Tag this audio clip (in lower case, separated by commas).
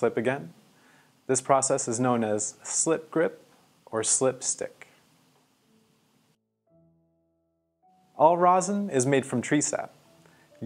speech